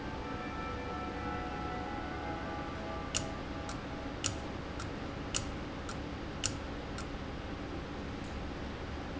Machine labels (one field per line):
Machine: valve